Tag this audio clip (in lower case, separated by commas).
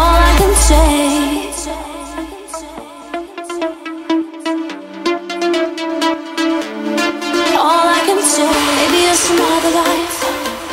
music